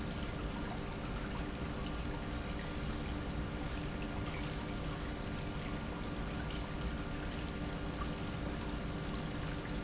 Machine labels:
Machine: pump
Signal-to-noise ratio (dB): -6 dB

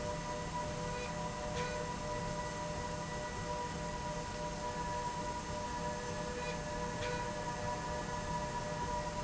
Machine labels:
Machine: slide rail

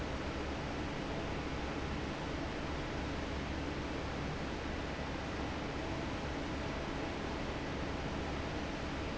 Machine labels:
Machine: fan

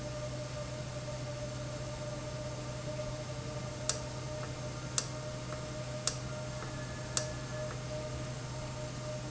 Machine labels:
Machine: valve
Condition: normal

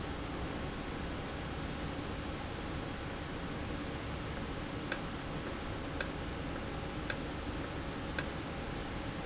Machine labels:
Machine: valve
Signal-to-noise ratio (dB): -6 dB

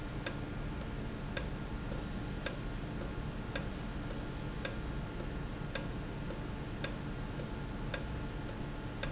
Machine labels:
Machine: valve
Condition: normal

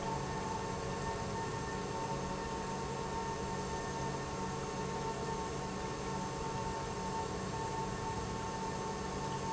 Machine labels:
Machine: pump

